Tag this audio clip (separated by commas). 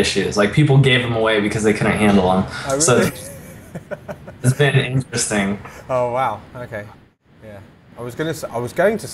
Speech